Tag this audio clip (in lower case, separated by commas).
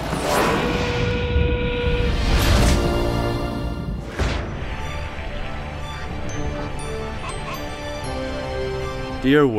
music, speech